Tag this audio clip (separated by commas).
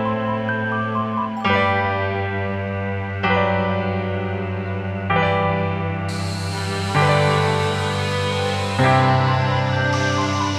Music